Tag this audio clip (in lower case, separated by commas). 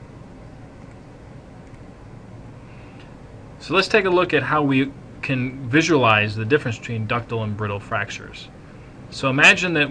speech